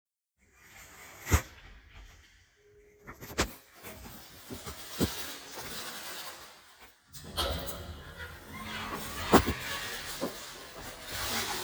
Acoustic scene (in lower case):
elevator